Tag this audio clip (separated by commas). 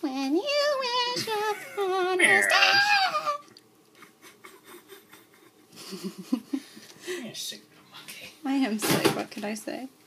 Speech, inside a small room